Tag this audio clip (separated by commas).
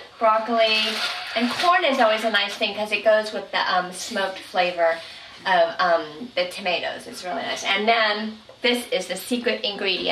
Speech